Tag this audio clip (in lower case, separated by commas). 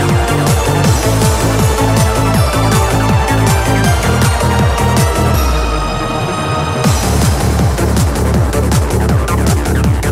music